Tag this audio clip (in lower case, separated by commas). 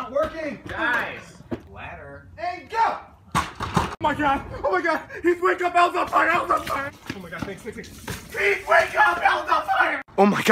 speech, slam, outside, urban or man-made